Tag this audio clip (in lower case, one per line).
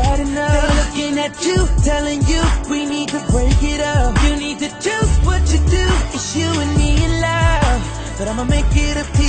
music